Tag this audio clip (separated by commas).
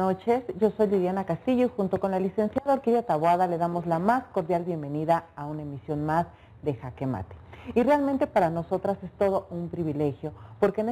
Speech